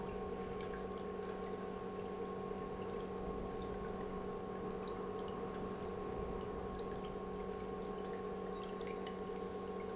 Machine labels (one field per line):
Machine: pump